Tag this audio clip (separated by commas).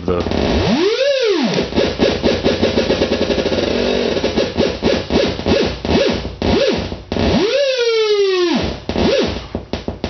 Speech, Music, Synthesizer